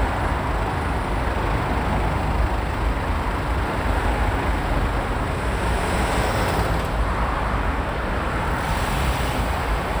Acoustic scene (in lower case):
street